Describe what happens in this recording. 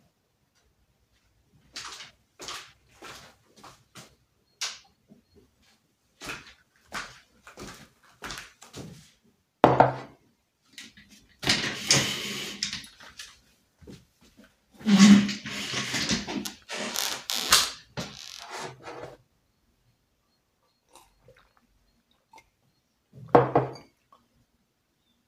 I walked to the light switch and turned on the lights. I walked to the desk, put down the mug, rolled back the chair, sat down. Then I picked up the mug and drank.